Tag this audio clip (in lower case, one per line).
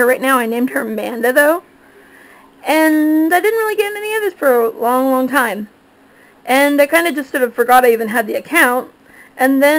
speech